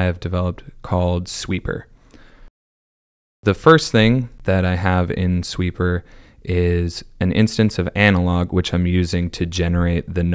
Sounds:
Speech

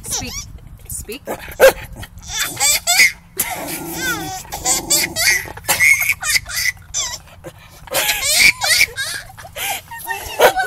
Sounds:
Dog, Speech, pets, Laughter, canids, Animal

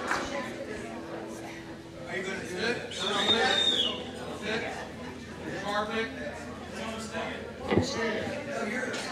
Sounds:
Speech

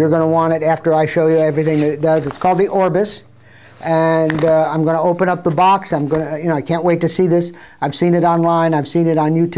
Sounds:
Speech

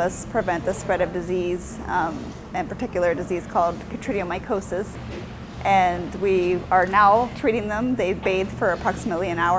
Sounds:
Speech

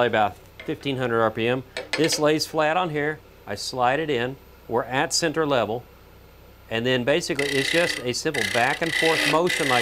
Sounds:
Speech, Tools

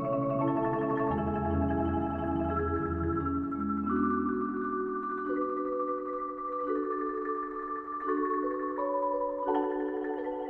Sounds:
Music, Percussion

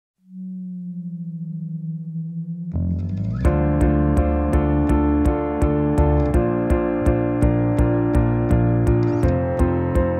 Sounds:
Music

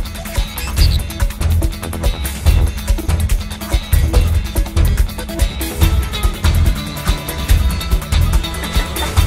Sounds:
Music

